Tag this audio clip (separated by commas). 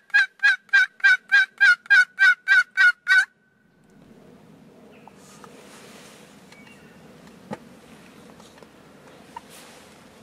turkey gobbling